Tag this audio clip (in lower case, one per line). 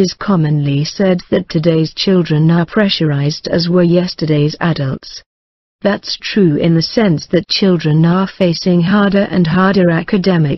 speech